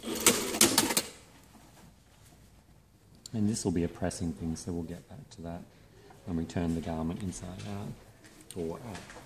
A couple of loud clanks are followed by a man speaking